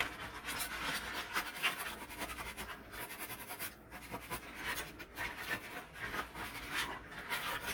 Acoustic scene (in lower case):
kitchen